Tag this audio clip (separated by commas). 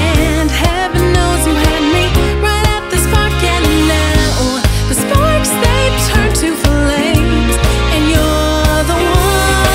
Singing